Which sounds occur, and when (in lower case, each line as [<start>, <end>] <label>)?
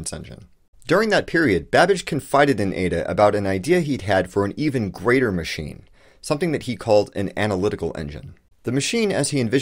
[0.01, 0.52] man speaking
[0.01, 9.61] background noise
[0.76, 5.84] man speaking
[6.17, 8.34] man speaking
[8.60, 9.61] man speaking